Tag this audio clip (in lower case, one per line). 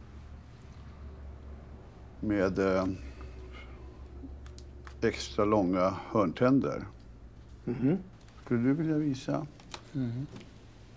speech